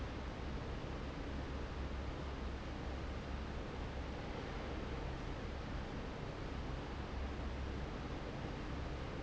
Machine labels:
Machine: fan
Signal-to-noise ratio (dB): 0 dB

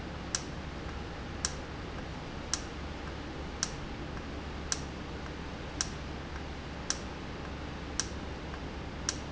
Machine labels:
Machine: valve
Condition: normal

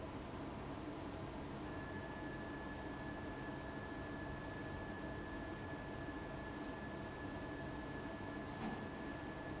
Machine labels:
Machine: fan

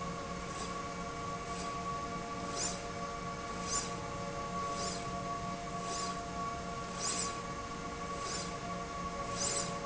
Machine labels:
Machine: slide rail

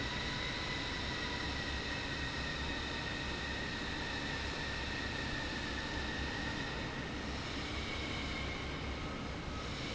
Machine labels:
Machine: fan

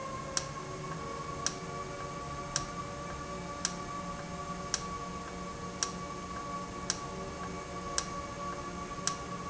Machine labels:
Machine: valve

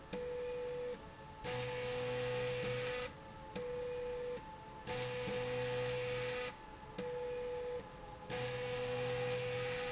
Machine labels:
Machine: slide rail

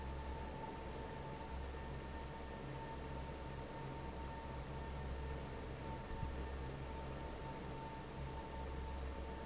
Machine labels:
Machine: fan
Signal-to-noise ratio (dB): 6 dB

